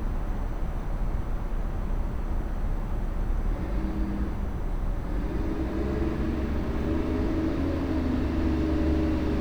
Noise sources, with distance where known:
large-sounding engine, near

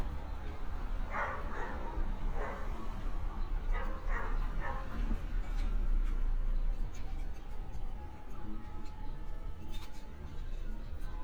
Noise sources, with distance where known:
dog barking or whining, far

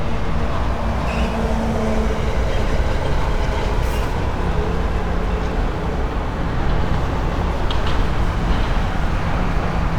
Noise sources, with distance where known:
large-sounding engine, near

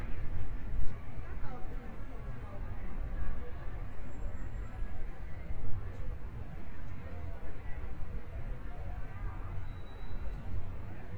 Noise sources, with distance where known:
person or small group talking, near

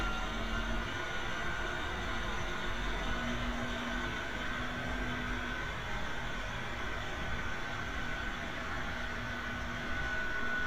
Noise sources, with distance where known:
large-sounding engine, near

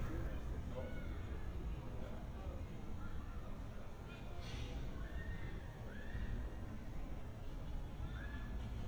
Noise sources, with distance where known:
person or small group talking, far

